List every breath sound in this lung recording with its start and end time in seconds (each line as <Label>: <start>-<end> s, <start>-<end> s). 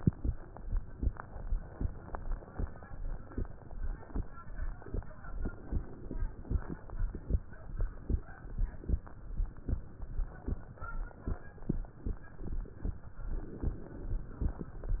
Inhalation: 5.27-6.85 s, 13.25-14.96 s